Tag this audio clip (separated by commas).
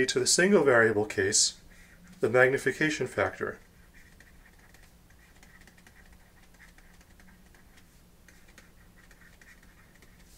inside a small room, Speech